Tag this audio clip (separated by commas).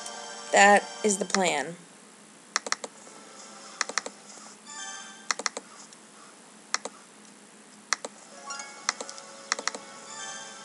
Computer keyboard, Speech, Music